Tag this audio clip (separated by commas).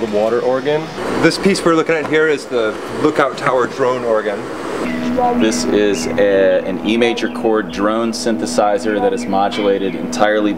Speech